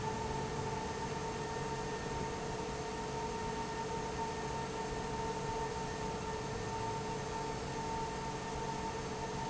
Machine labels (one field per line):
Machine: fan